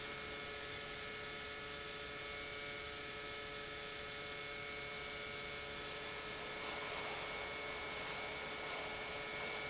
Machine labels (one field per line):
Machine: pump